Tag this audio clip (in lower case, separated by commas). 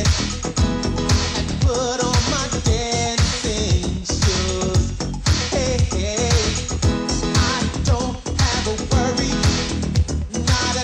singing